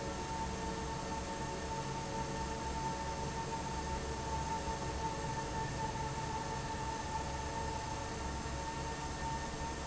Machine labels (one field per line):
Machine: fan